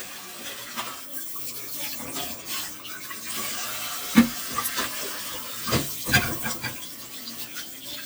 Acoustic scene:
kitchen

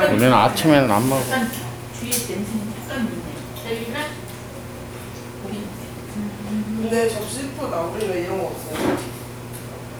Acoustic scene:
crowded indoor space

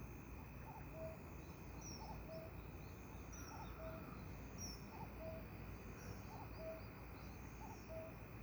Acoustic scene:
park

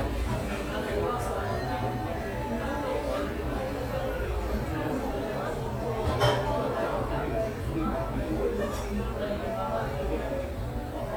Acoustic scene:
cafe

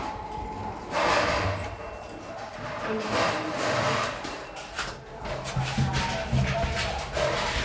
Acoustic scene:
elevator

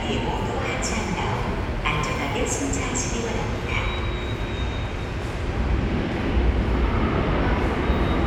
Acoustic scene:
subway station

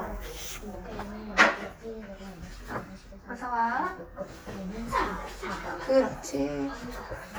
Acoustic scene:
crowded indoor space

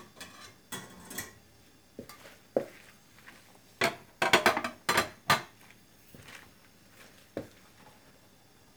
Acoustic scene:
kitchen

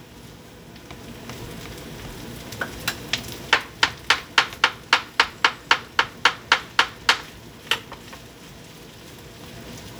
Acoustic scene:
kitchen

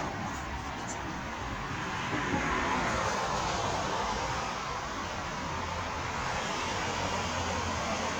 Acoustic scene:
street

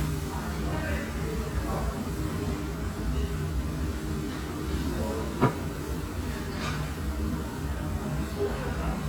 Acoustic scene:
restaurant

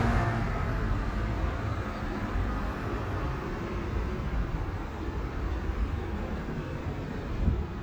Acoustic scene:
street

